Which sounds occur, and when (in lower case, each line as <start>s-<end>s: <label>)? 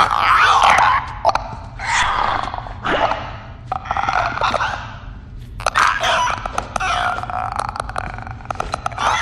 0.0s-1.0s: sound effect
0.0s-9.2s: mechanisms
1.2s-1.4s: sound effect
1.7s-3.5s: sound effect
3.7s-5.1s: sound effect
5.4s-9.2s: sound effect